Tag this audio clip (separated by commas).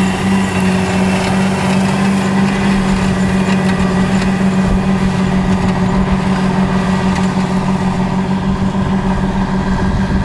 Accelerating, Vehicle, Clatter